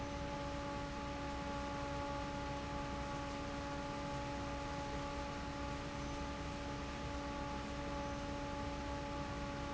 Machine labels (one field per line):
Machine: fan